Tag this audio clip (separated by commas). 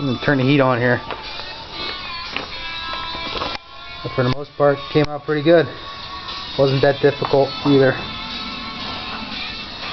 Speech, Music